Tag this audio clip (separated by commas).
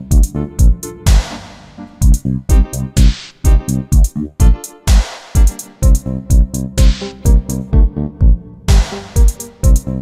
Music, Synthesizer